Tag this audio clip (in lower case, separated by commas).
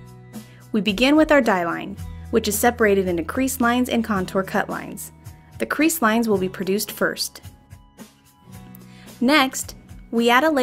speech, music